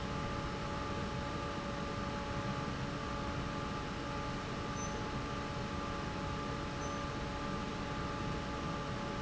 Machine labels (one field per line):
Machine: fan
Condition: normal